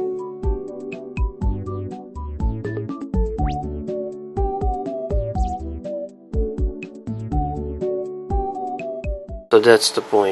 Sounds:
music
speech

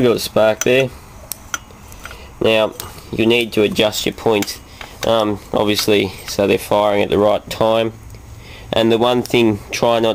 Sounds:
speech

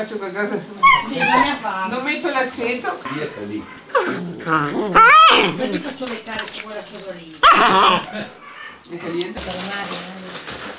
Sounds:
dog
domestic animals
speech
animal

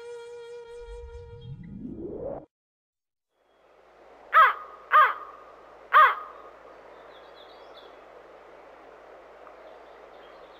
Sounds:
crow cawing

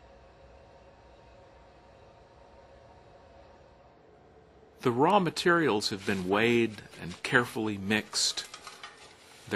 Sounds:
speech

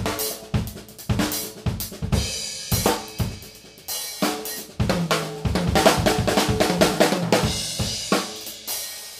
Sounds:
cymbal
playing drum kit
drum kit
drum
musical instrument

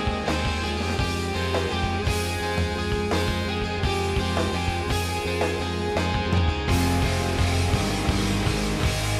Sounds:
exciting music
music

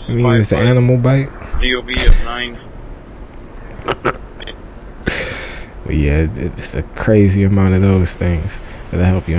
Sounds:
police radio chatter

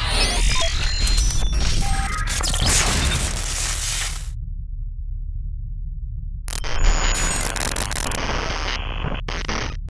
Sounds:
sound effect

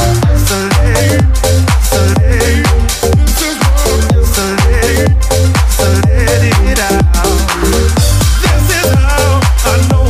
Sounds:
pop music
soundtrack music
music

